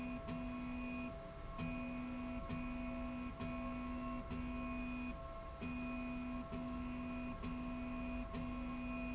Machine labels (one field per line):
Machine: slide rail